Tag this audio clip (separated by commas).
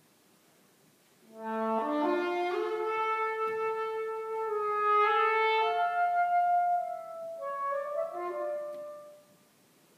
Trumpet, Brass instrument